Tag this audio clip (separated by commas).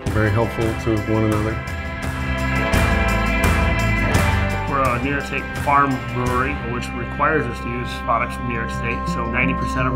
Speech, Music